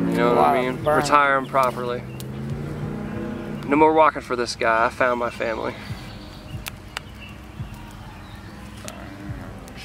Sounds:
Fire

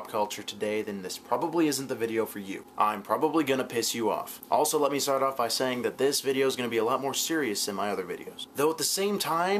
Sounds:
Speech

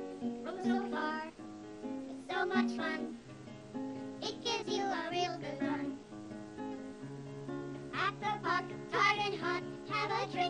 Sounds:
Music

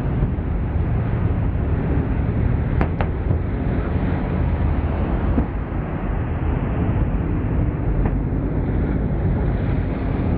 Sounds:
Motor vehicle (road), Car, Vehicle

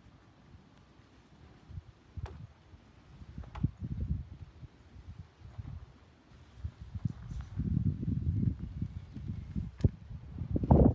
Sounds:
barn swallow calling

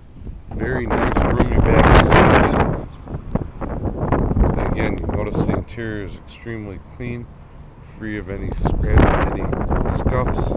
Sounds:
Vehicle, Car

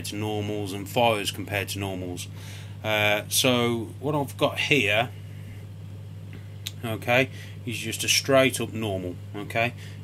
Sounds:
inside a small room, Speech

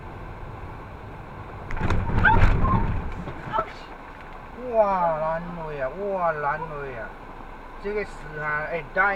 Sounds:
roadway noise

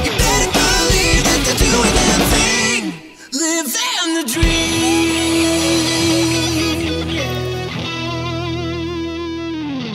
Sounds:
Speech, Music

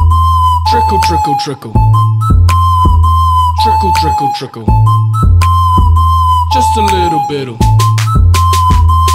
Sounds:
Music

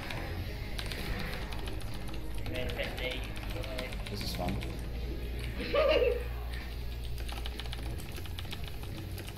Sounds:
Laughter, Speech

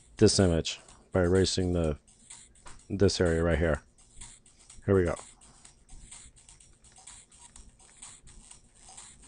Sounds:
Music, Speech

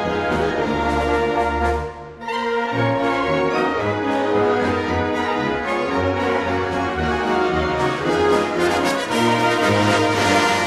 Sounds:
Music, Orchestra

